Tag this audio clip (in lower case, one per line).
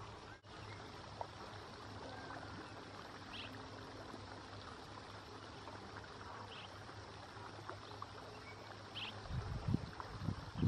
barn swallow calling